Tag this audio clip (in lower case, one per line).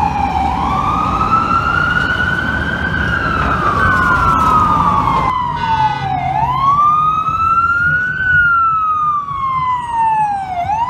ambulance siren